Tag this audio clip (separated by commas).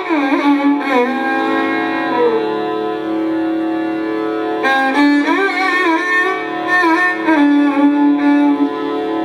Music, Violin, Musical instrument